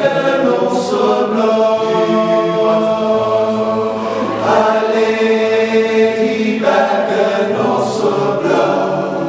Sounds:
singing, vocal music, chant, music, a capella

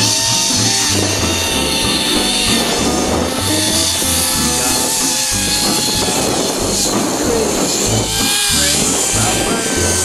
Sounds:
outside, rural or natural, music, speech

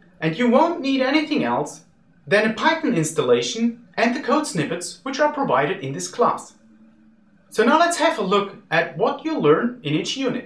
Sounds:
speech

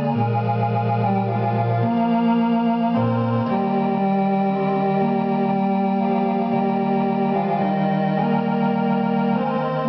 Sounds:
hammond organ, organ

